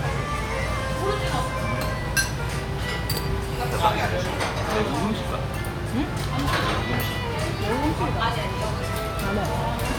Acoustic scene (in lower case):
restaurant